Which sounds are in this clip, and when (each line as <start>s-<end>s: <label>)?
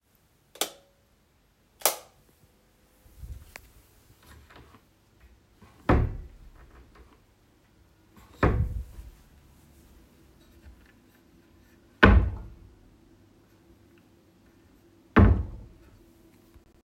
0.5s-0.8s: light switch
1.8s-2.1s: light switch
5.5s-6.5s: wardrobe or drawer
8.2s-9.1s: wardrobe or drawer
11.8s-12.8s: wardrobe or drawer
15.1s-15.8s: wardrobe or drawer